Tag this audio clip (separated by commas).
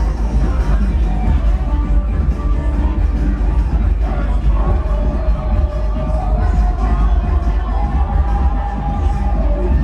Music, Sound effect